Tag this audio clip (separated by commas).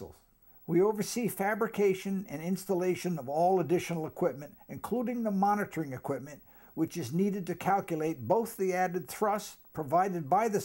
Speech